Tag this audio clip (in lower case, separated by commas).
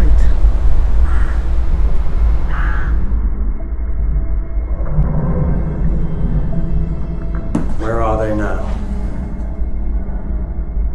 speech, music